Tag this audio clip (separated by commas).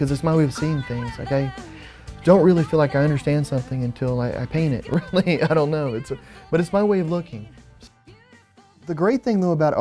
Music, Speech